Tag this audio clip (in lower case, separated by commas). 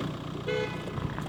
vehicle, motor vehicle (road), car, honking, alarm